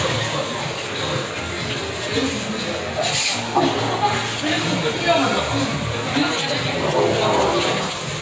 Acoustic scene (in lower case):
restaurant